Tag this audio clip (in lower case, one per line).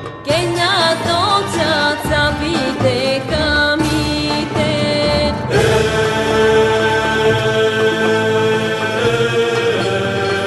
music
chant